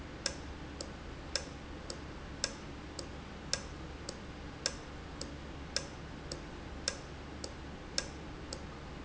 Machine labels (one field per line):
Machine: valve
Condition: normal